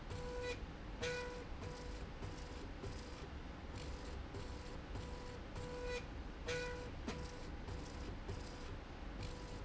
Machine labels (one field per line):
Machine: slide rail